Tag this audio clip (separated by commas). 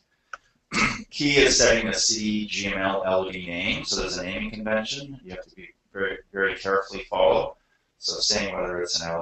Speech